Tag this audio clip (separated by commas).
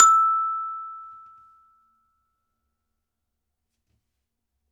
Percussion, Glockenspiel, Musical instrument, Music, Mallet percussion